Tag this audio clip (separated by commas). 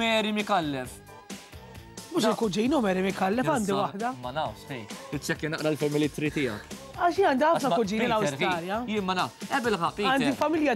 Music, Speech